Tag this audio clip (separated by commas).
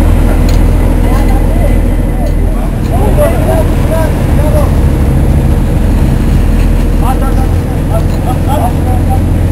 Speech, Motorboat, Vehicle